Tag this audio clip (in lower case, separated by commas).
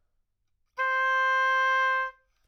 music, wind instrument, musical instrument